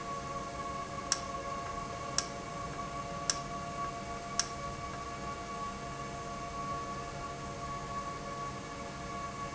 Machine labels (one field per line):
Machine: valve